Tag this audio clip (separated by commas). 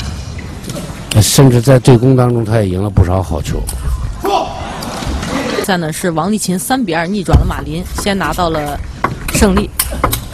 Speech